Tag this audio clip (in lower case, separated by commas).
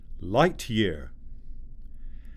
man speaking, speech, human voice